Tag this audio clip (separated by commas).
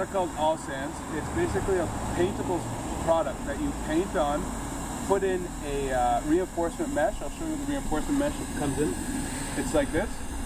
Speech